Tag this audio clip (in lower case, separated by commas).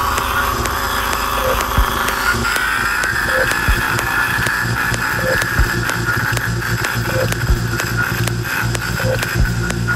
music